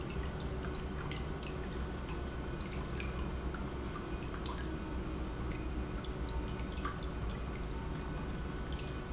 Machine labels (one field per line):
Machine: pump